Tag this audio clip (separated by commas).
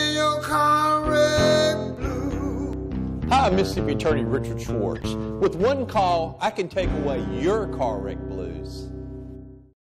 Speech, Music